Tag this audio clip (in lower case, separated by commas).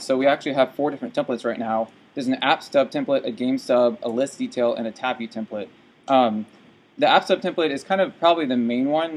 speech